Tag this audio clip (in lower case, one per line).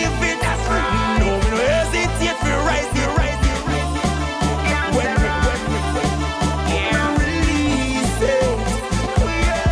music